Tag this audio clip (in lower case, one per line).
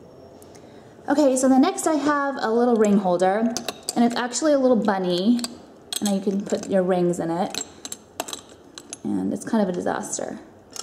speech